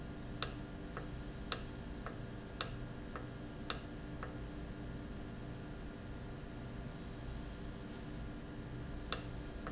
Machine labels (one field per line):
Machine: valve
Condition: normal